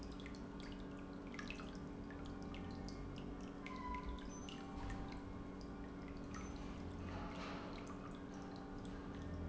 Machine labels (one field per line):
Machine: pump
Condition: normal